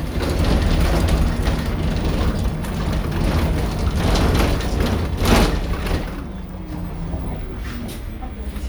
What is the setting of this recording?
bus